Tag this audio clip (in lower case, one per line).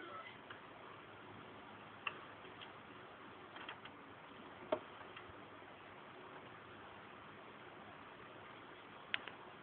sliding door